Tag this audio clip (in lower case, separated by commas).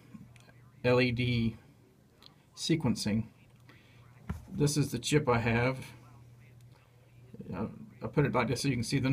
speech